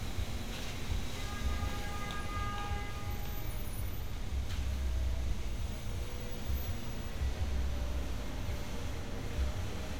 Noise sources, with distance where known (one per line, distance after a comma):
medium-sounding engine
car horn